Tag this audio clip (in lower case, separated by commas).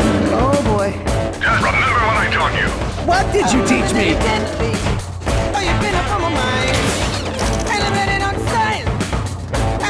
speech, music